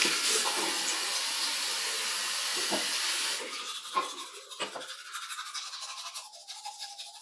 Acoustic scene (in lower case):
restroom